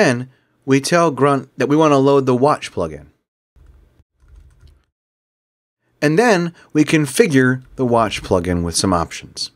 A man is talking in a quiet environment